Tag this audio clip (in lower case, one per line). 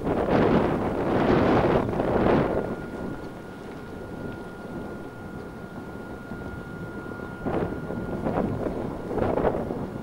truck
vehicle
outside, rural or natural